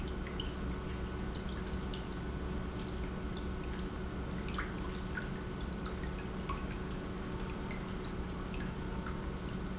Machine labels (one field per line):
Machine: pump